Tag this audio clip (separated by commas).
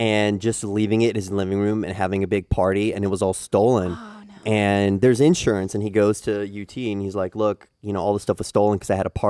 Speech